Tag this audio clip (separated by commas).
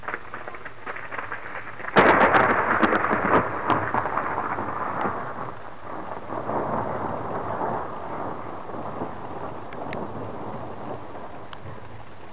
Thunder, Thunderstorm